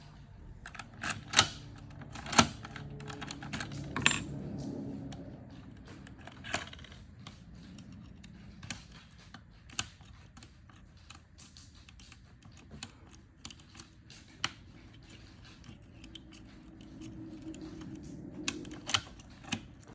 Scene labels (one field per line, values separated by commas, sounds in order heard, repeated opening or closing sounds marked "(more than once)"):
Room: hallway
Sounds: door, keys